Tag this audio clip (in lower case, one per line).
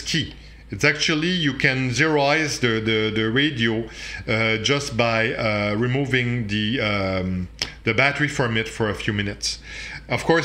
police radio chatter